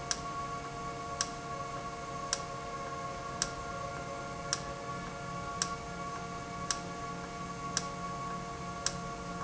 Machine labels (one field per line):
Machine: valve